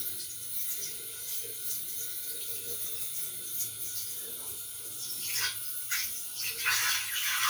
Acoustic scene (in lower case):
restroom